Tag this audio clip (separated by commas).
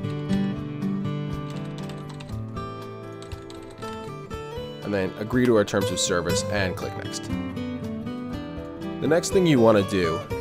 Speech, Music